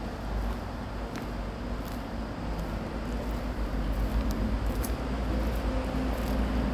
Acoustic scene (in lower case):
residential area